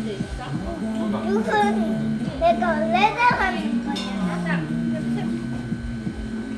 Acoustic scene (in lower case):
crowded indoor space